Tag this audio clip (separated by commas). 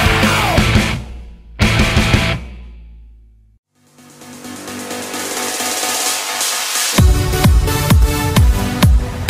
Electronic dance music, Music